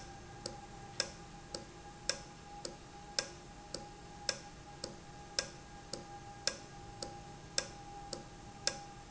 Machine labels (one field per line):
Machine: valve